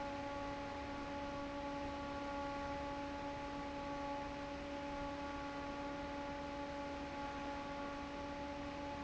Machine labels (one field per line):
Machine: fan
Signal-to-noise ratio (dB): 6 dB